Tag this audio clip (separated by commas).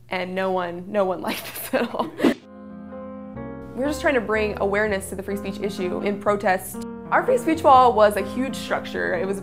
Female speech, Music, Speech, monologue